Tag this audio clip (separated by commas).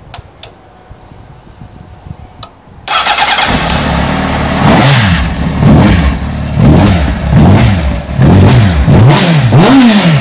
Vehicle, Motorcycle